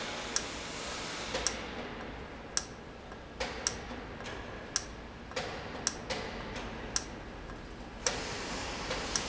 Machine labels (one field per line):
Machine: valve